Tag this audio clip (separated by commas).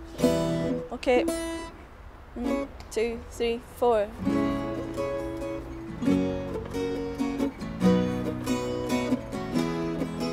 Music, Speech